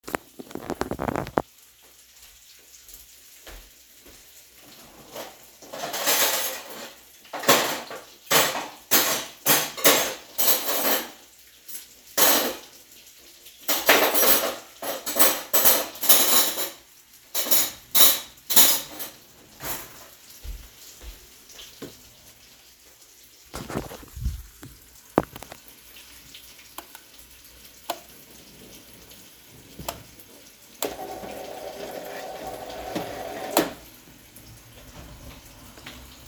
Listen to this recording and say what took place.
Sorted in cutlery, closed drawer, turned off light switch.